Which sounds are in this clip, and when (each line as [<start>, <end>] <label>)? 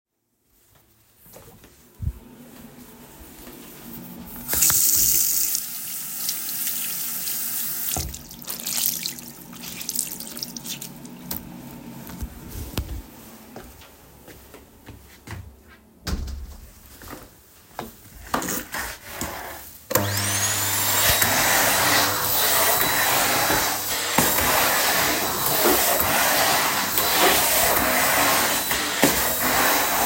[4.41, 8.42] running water
[13.75, 15.68] footsteps
[15.97, 17.40] door
[19.46, 30.06] vacuum cleaner